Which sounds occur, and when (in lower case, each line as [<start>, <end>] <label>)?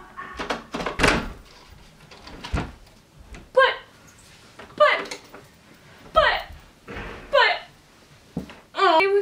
[0.00, 9.21] background noise
[0.02, 0.40] human voice
[0.34, 0.57] generic impact sounds
[0.71, 1.28] door
[1.43, 2.04] paper rustling
[2.04, 2.54] generic impact sounds
[2.49, 2.69] door
[2.80, 3.00] surface contact
[3.29, 3.39] generic impact sounds
[3.53, 3.87] female speech
[4.04, 4.52] surface contact
[4.55, 4.65] generic impact sounds
[4.77, 5.08] female speech
[4.95, 5.17] generic impact sounds
[5.31, 5.38] generic impact sounds
[5.59, 6.06] surface contact
[6.11, 6.50] female speech
[6.35, 6.55] generic impact sounds
[6.82, 7.32] surface contact
[7.28, 7.68] female speech
[7.51, 8.44] surface contact
[8.34, 8.52] tap
[8.71, 9.21] female speech